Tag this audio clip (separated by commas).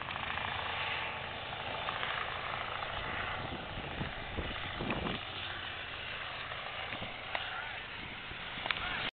Vehicle